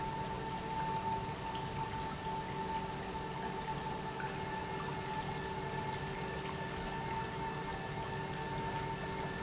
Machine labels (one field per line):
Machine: pump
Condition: normal